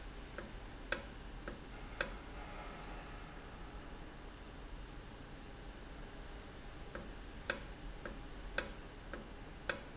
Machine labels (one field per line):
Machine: valve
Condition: normal